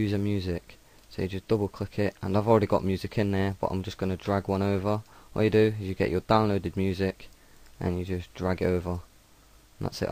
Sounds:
Speech

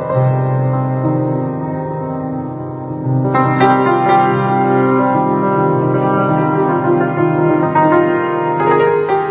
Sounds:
Music

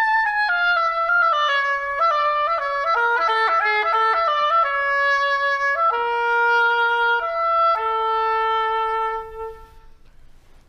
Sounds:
playing oboe

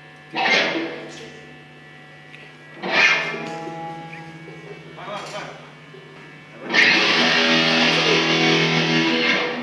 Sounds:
Music, Speech

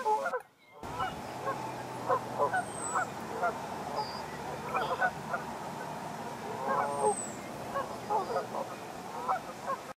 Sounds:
goose honking, Honk

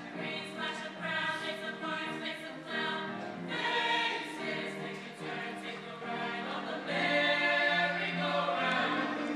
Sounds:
Female singing, Music

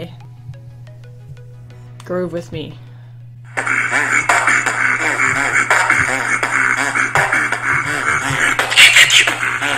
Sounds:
Speech, Beatboxing

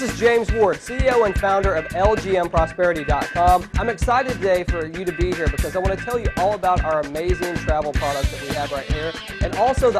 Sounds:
Speech, Music

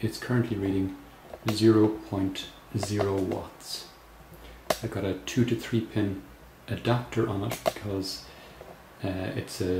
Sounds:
Speech

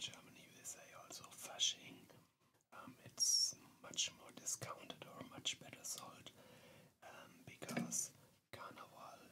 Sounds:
Speech

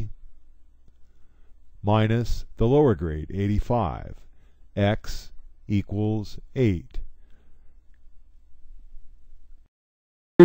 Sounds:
Speech synthesizer, Speech

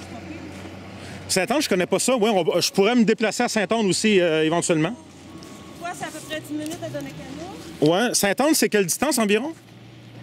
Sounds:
Speech

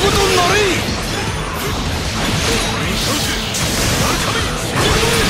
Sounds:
Speech, Music

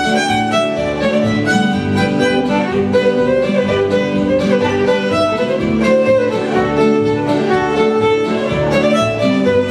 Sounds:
String section

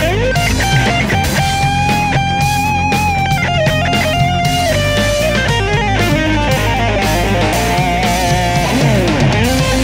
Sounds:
Strum, Music, Electric guitar, Musical instrument

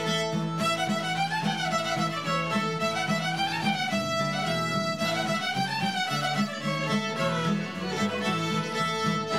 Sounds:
Violin, Pizzicato, Music, Musical instrument

